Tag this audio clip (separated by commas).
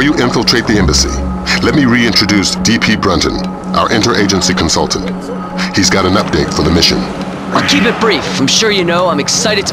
Speech